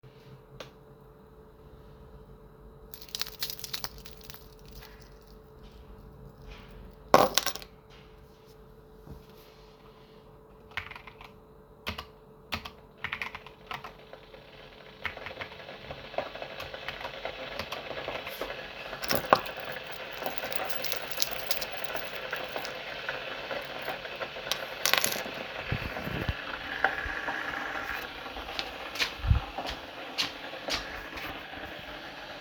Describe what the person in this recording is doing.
Iam typing as my roommate walks, with smaking the keys on my desk while water is boiling